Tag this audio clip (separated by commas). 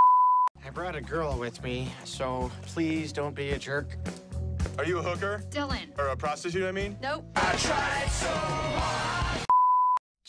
Music, Speech